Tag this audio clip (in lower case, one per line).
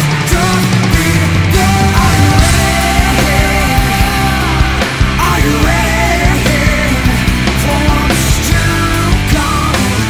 music